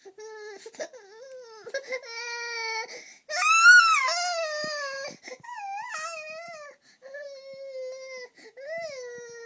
A baby crying and screaming